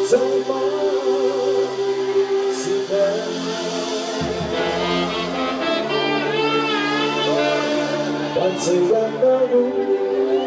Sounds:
Music

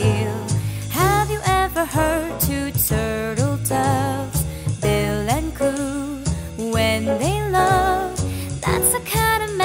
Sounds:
Lullaby, Music

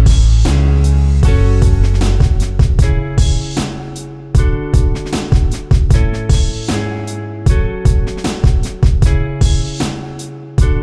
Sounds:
Music

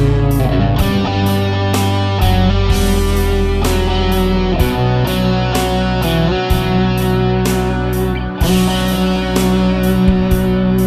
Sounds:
Music

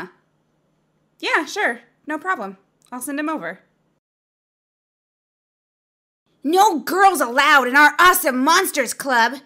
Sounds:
Speech

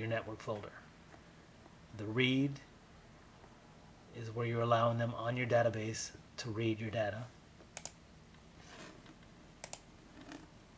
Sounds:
inside a small room, Speech

